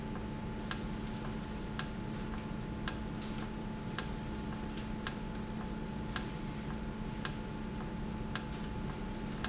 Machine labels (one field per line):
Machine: valve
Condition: normal